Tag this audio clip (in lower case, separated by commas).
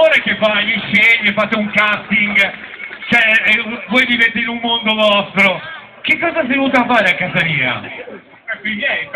speech